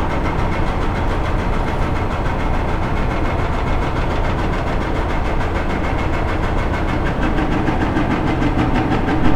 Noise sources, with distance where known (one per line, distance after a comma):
hoe ram, near